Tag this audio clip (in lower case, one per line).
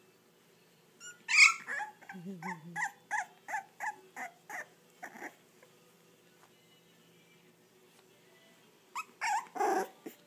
pets
animal
dog